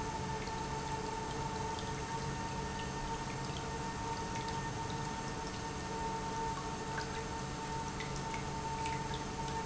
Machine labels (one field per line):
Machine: pump